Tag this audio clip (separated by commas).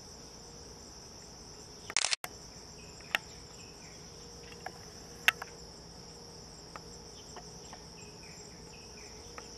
woodpecker pecking tree